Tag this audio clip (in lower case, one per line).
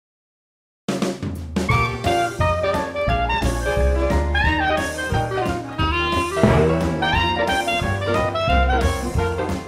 jazz